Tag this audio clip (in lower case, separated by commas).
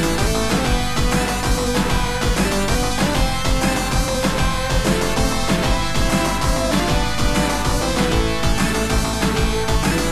music, theme music